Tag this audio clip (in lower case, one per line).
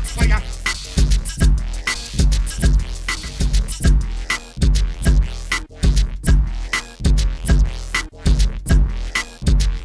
dubstep
drum machine
electronic music
music
sampler